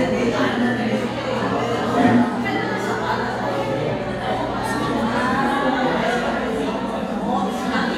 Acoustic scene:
crowded indoor space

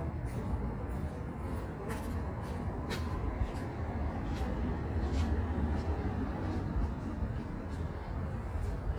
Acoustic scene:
residential area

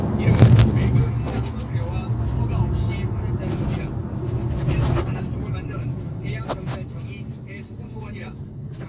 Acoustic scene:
car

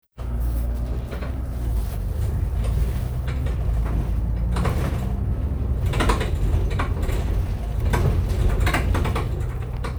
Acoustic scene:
bus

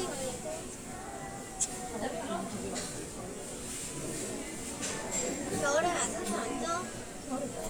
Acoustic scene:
restaurant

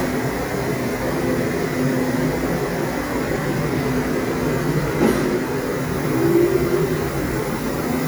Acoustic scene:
subway station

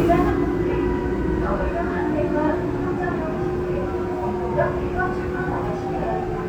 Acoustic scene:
subway train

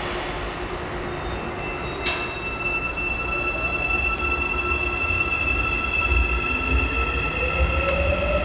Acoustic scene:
subway station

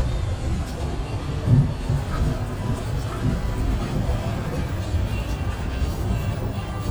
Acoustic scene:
bus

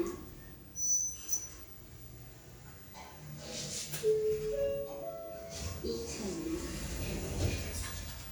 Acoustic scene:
elevator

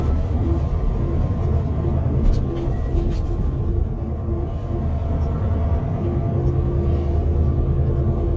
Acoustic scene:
car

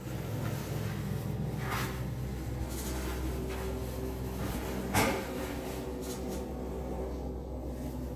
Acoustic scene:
elevator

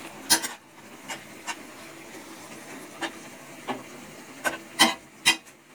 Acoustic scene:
kitchen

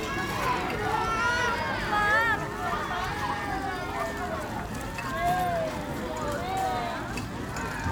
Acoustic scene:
park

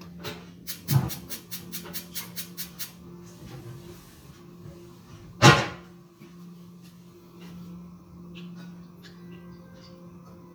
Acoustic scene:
kitchen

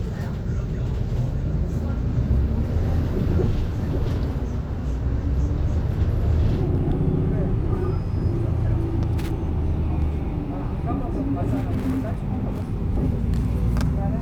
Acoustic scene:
bus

